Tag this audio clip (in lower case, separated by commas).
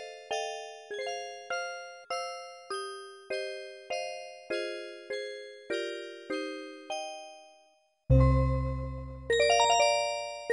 keyboard (musical), piano